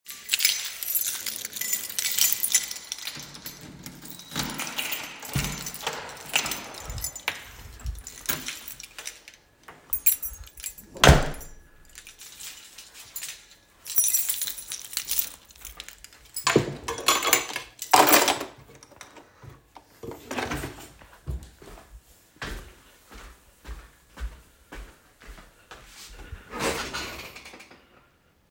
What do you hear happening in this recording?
I picked up my keys, opened and closed the door, and walked into the kitchen. I walked to a drawer, opened it, placed the keys inside, and closed the drawer. Then I walked to a swivel chair and sat down.